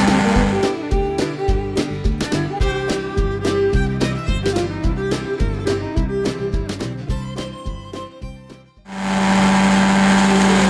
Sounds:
Music

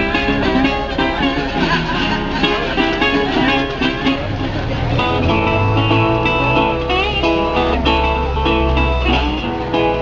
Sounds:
Musical instrument, Plucked string instrument, Music, Blues, Speech, Strum, Guitar

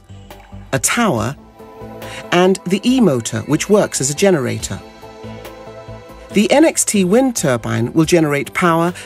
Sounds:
Music, Speech

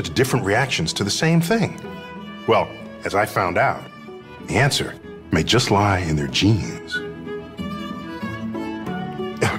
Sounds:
Cello

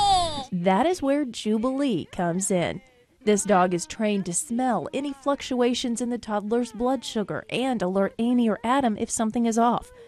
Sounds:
Speech

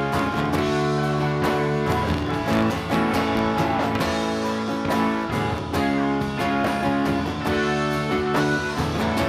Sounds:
Singing, Music

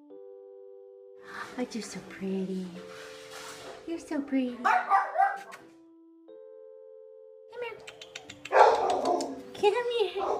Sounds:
canids, Speech, Dog, inside a small room, Domestic animals, Animal, Music

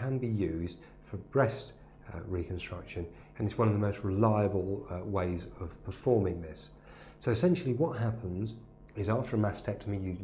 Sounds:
Speech

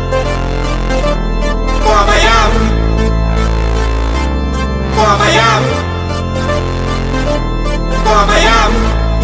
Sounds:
Zing, Music

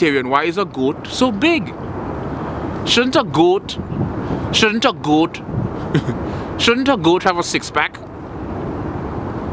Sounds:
Speech

